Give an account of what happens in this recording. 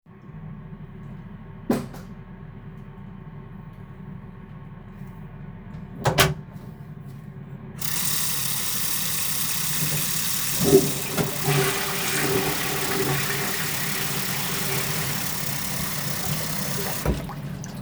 I turned on the light and closed the bathroom door. Then I turned on the water and flushed the toilet while the water was running. The ventilation fan was audible in the background during the scene